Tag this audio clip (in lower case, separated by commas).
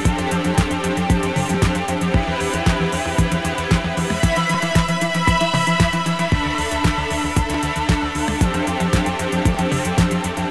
music